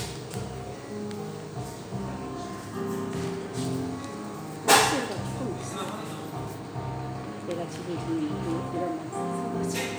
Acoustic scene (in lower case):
cafe